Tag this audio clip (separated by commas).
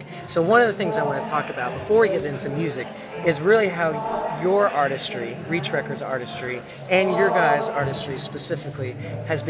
Speech, Music